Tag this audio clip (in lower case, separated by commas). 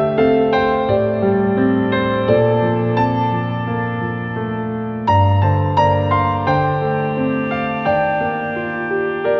music